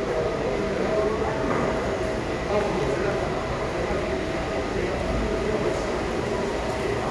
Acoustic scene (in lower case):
crowded indoor space